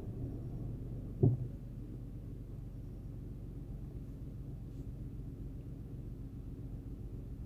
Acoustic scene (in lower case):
car